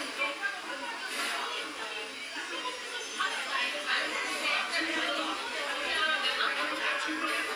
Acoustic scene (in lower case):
restaurant